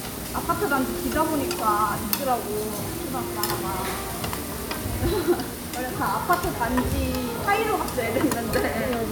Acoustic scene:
restaurant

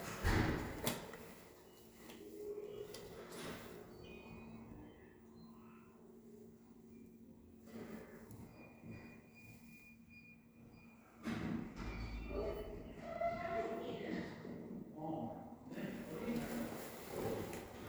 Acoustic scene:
elevator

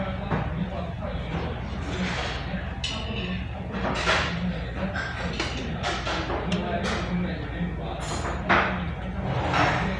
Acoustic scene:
restaurant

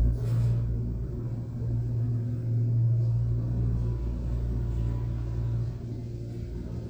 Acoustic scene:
elevator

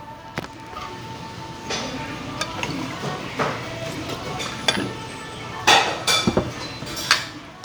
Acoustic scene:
restaurant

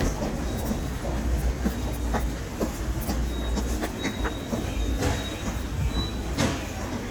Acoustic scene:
subway station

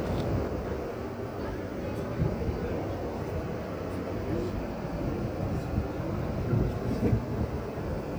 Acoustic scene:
park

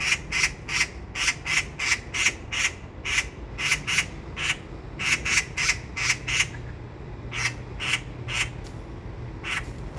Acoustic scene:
park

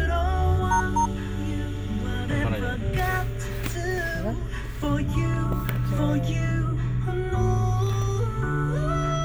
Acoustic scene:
car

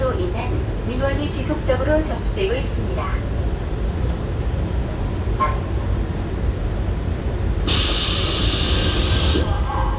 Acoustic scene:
subway train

